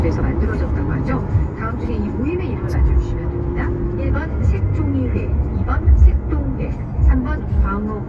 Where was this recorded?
in a car